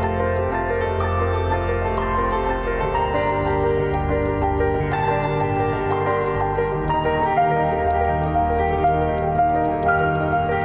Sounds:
music

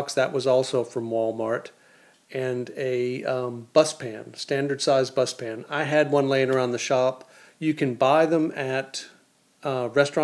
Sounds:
speech

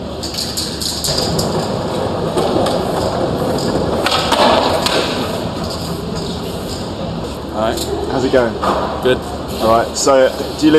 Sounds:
speech

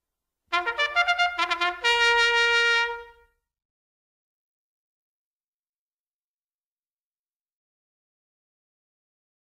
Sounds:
playing bugle

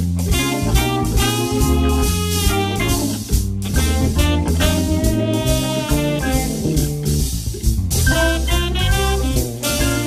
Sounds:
music

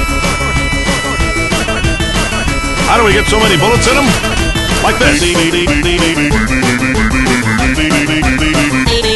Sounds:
music
speech

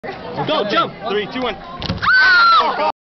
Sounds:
speech

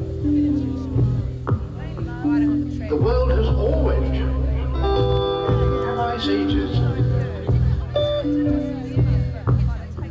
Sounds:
speech
music

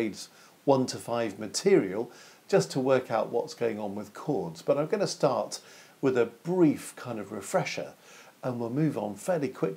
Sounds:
speech

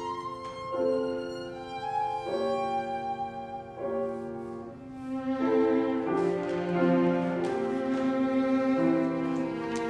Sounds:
music
musical instrument
piano
fiddle
cello
bowed string instrument

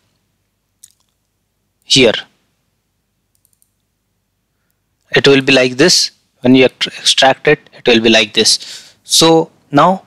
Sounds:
clicking
speech

